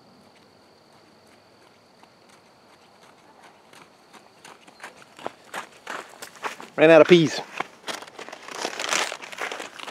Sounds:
speech, outside, rural or natural

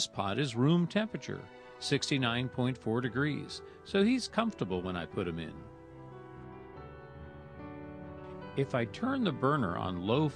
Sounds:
music, speech

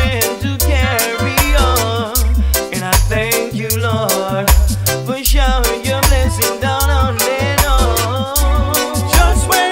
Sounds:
music, male singing

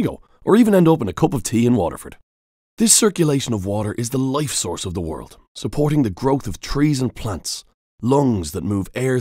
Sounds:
speech

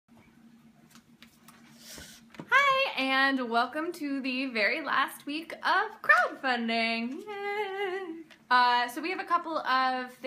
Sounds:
speech, inside a small room

